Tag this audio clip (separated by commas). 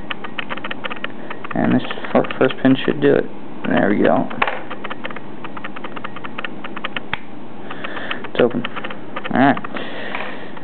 Speech